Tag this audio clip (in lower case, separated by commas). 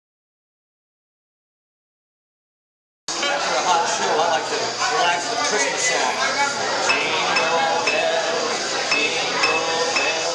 speech, music